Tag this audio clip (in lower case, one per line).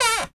door
domestic sounds
cupboard open or close